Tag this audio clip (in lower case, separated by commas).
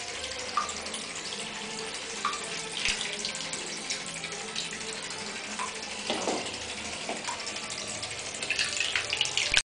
vehicle, speedboat, water vehicle, music